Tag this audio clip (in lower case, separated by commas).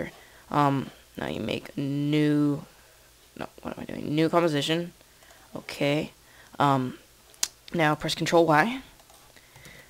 speech, monologue, man speaking